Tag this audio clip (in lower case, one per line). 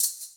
rattle (instrument)
music
percussion
musical instrument